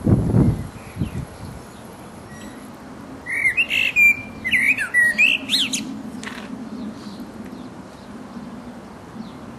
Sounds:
bird
tweet
bird call

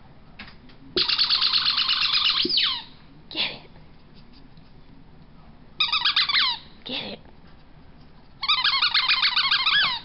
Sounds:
speech

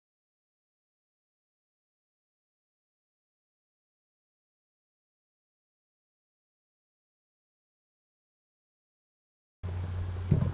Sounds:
silence

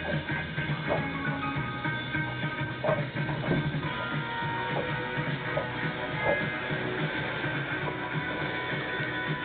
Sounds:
music

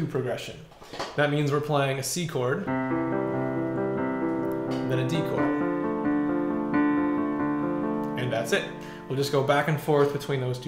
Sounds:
music
speech

